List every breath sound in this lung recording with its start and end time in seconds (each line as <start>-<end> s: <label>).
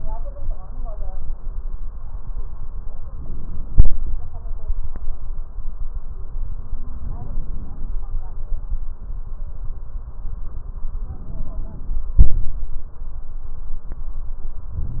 3.15-4.16 s: inhalation
7.00-8.01 s: inhalation
11.01-12.01 s: inhalation
12.16-12.75 s: exhalation